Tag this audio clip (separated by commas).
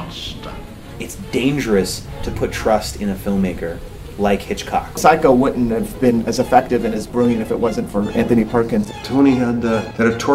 Music, Speech